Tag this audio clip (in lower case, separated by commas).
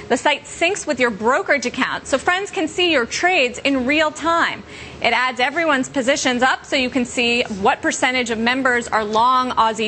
speech